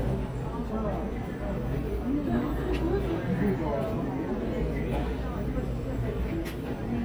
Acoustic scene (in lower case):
crowded indoor space